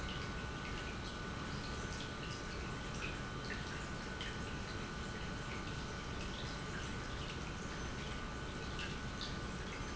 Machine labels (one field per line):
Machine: pump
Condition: normal